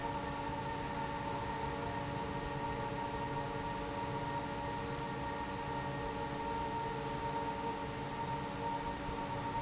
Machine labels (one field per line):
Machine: fan